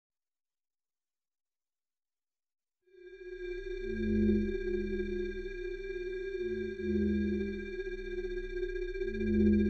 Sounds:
Music

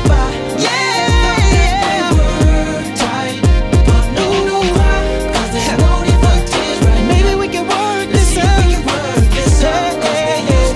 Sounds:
Music

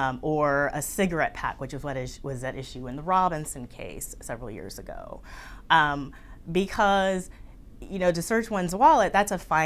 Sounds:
inside a small room, Speech

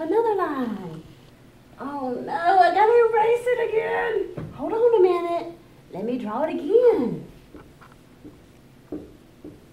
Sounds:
Speech

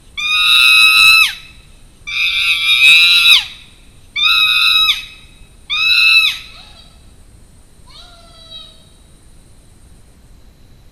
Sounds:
chimpanzee pant-hooting

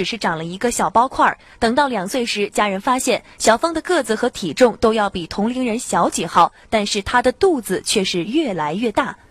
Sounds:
Speech

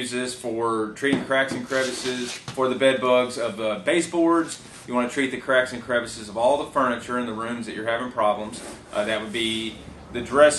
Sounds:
Speech

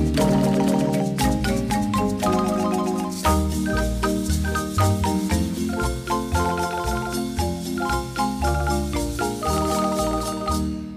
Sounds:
xylophone, Mallet percussion, Glockenspiel

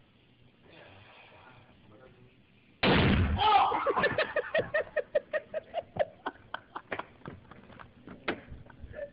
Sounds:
Speech, pop

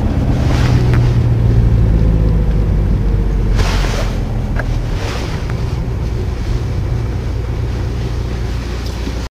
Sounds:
Heavy engine (low frequency)

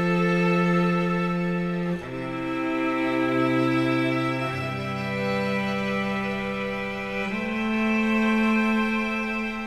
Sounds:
Music

